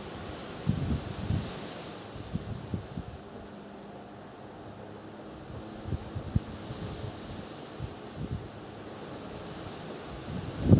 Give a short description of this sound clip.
Leaves rustling in a strong breeze